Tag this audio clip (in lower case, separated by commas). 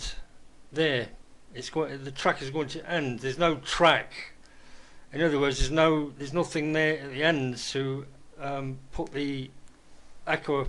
speech